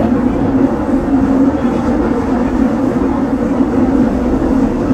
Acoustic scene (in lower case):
subway train